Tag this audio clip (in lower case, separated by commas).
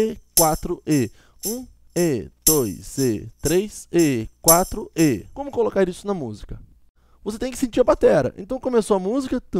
playing tambourine